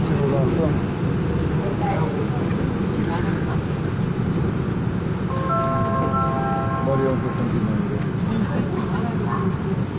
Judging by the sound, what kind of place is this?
subway train